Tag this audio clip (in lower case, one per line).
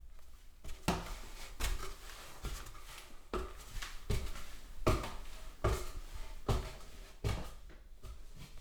walk